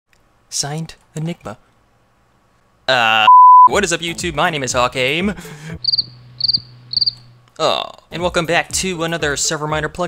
A man talking followed by a beep then a man talking and crickets chirping